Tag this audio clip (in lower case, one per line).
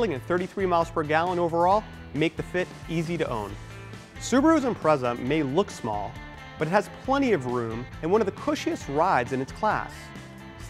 music
speech